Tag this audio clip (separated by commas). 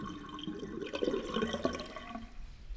home sounds, Sink (filling or washing)